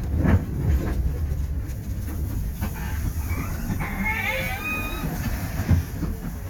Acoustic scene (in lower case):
bus